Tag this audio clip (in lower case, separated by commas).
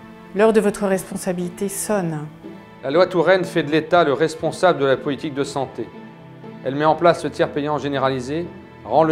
speech, music